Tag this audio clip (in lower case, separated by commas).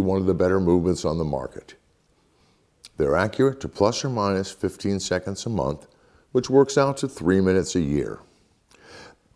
speech